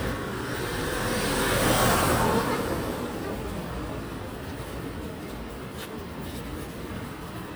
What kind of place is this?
residential area